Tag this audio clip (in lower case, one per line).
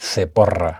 male speech
human voice
speech